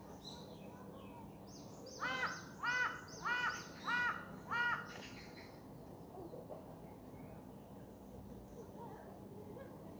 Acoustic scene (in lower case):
park